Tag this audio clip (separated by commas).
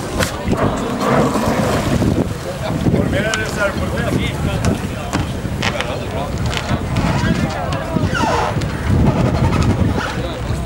Speech, Vehicle, Boat